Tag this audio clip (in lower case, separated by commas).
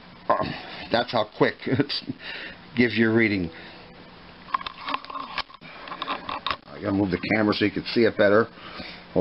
speech